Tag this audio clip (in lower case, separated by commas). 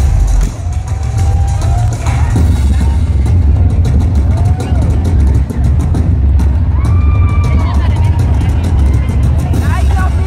speech, music